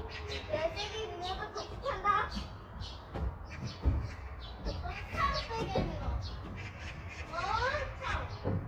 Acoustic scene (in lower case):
park